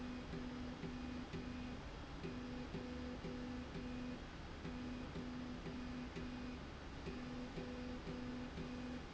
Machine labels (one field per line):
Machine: slide rail